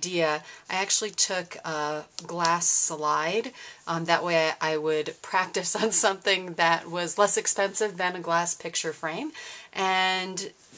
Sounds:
Speech

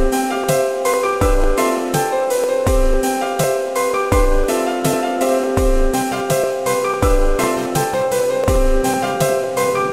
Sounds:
Music

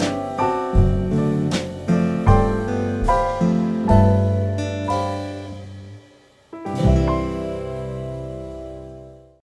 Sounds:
Music

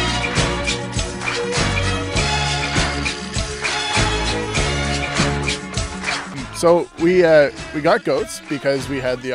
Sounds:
Music, Speech

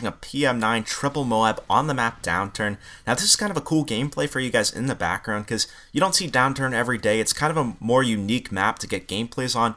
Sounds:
Speech

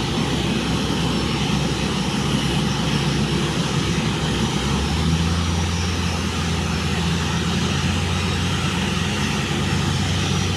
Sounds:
Vehicle, airplane

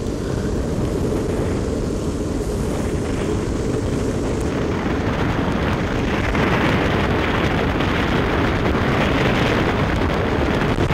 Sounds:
Vehicle

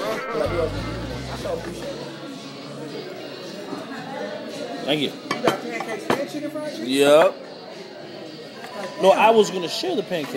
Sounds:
Music, Speech

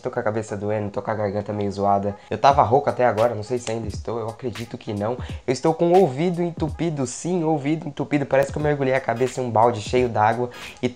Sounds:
striking pool

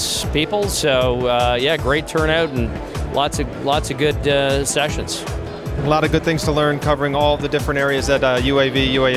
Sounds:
Speech, Music

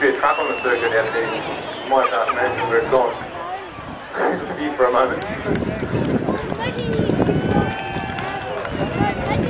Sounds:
Speech

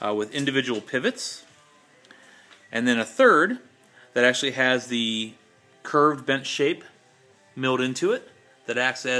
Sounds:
Music, Speech

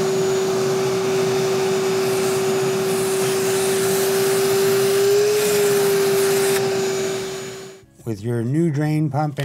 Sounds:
Speech, inside a small room

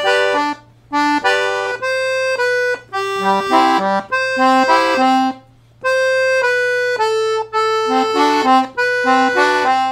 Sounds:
playing accordion

